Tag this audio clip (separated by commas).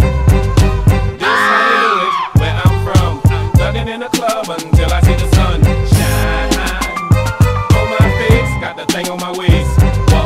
Music